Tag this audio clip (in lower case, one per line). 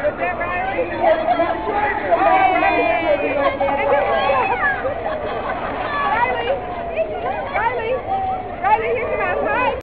speech